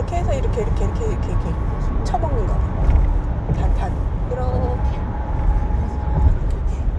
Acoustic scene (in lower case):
car